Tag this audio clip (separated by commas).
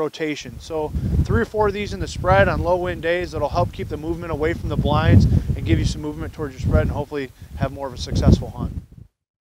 Speech